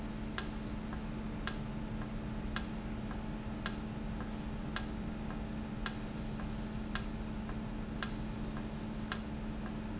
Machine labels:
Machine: valve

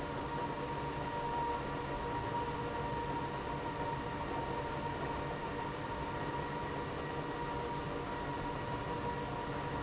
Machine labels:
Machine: pump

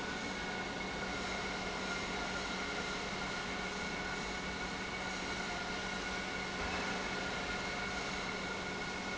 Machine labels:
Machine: pump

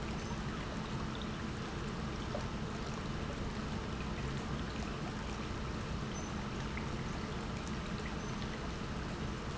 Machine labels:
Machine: pump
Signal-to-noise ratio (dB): -6 dB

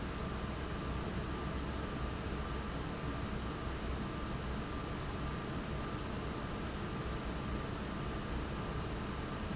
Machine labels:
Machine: fan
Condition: abnormal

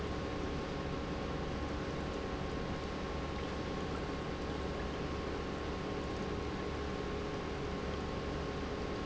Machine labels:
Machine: pump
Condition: normal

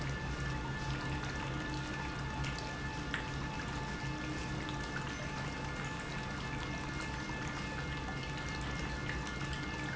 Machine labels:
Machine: pump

